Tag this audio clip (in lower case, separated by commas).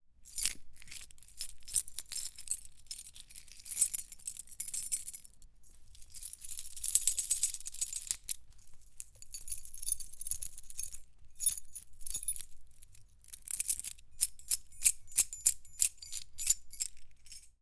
keys jangling, home sounds